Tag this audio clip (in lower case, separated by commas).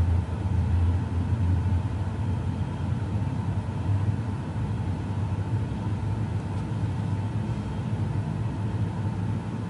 heavy engine (low frequency), aircraft, vehicle